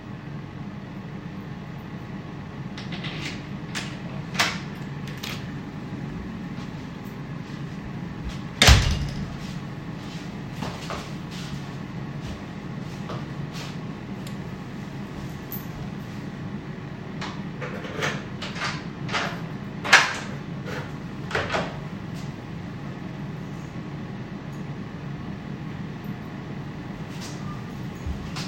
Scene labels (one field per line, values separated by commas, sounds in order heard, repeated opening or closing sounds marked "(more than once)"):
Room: hallway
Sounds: door (more than once), footsteps, keys